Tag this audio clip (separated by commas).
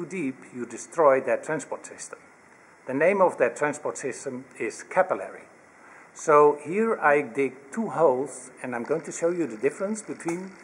Speech